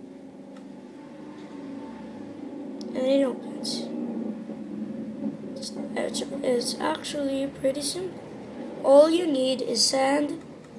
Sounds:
Speech

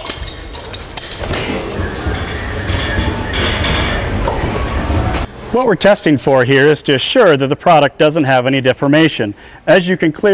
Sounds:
Speech

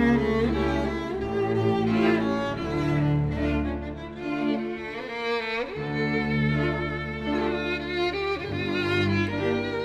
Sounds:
Violin, Music, Musical instrument

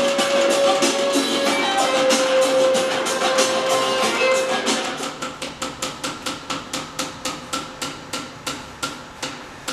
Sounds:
Music

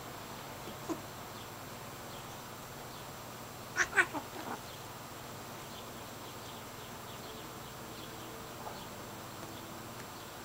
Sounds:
pets

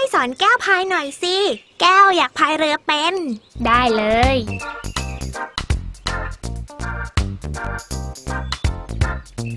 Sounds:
Speech, Child speech, Music

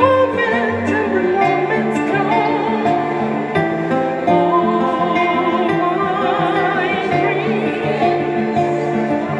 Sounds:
Music

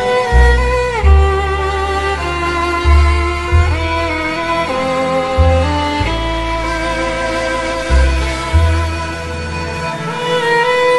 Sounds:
Music, Background music

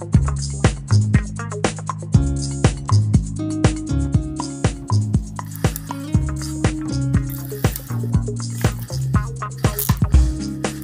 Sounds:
Music

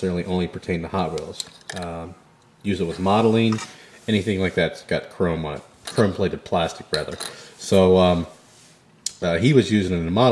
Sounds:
dishes, pots and pans

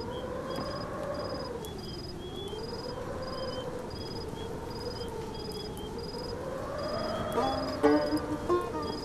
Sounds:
Music

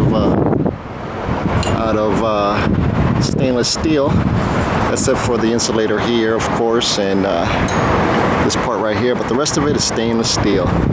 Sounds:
Wind

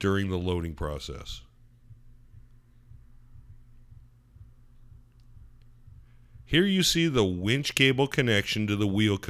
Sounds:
Speech

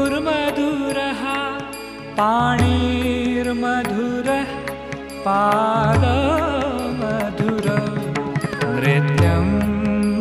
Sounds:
Music

